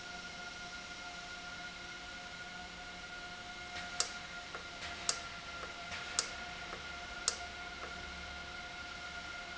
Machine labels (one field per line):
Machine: valve